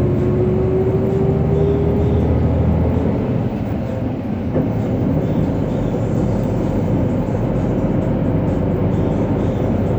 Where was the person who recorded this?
on a bus